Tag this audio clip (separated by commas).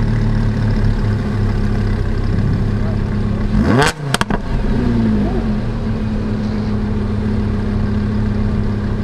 Car